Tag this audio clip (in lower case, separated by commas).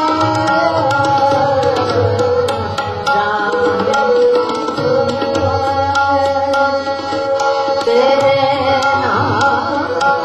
music of asia, fiddle, musical instrument, percussion, music, singing, bowed string instrument, tabla